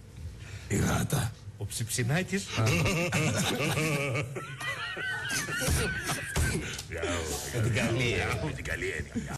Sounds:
Speech

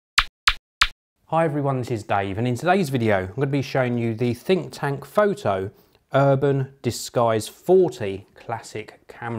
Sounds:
Speech

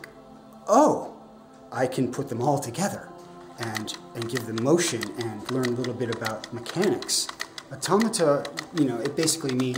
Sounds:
Speech, Music

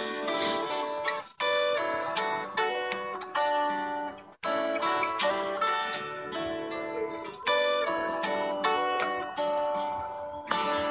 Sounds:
Banjo

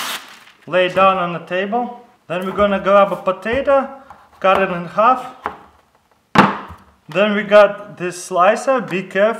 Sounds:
inside a small room, Speech

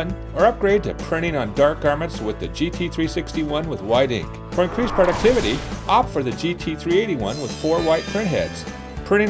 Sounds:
Speech, Music

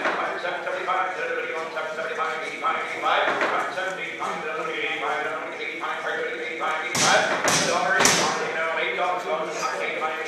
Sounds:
Speech

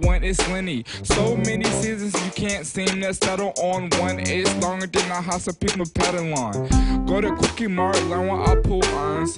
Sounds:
rapping

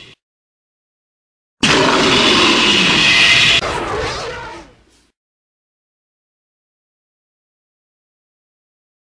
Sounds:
Roar, Animal

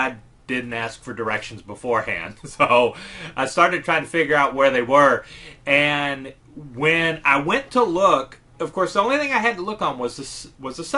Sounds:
Speech

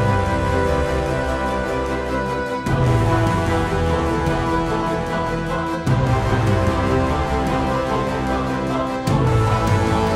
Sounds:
Music

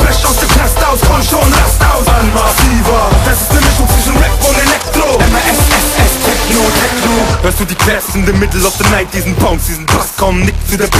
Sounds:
Electronic music, Techno, Music

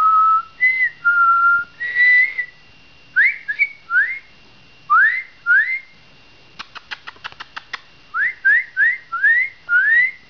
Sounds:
Whistling

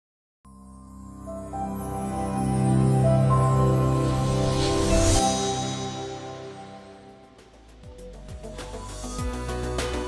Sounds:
Music

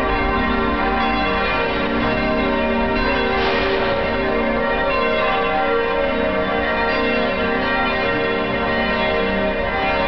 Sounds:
church bell ringing

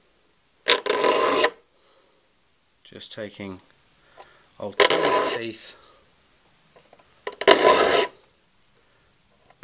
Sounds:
Rub, Filing (rasp)

